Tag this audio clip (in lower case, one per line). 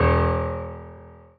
music
musical instrument
piano
keyboard (musical)